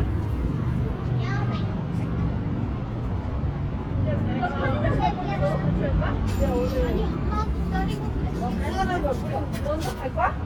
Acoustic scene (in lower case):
residential area